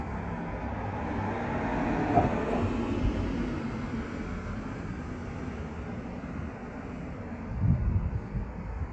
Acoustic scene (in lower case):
street